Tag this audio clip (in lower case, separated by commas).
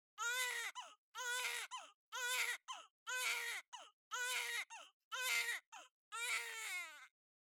human voice, sobbing